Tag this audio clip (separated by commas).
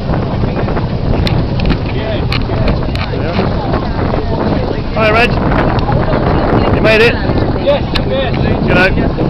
Speech